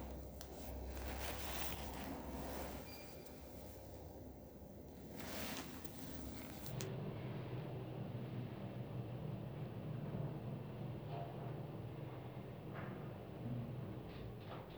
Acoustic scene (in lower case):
elevator